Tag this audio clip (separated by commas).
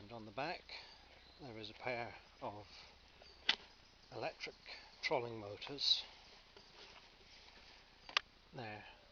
Speech